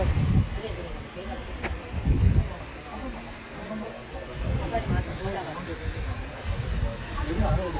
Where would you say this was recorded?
in a park